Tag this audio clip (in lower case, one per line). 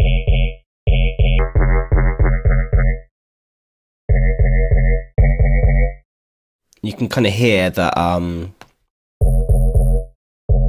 electronic music
speech
synthesizer
music